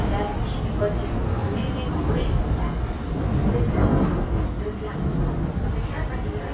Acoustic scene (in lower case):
subway train